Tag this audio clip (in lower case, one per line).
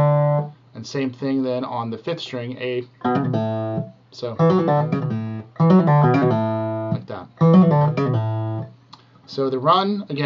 speech
musical instrument
plucked string instrument
music
guitar
electronic tuner
acoustic guitar